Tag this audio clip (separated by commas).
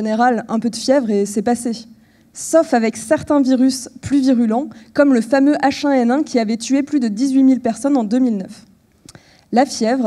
Speech